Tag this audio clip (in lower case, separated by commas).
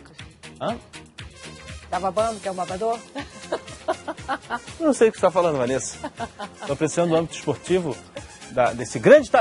music, speech